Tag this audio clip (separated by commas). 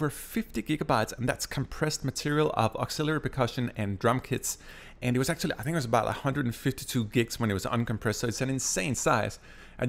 Speech